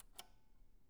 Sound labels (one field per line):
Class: switch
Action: being turned off